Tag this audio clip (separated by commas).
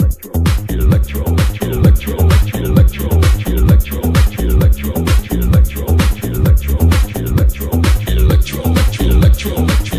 Disco, Music, Electronic music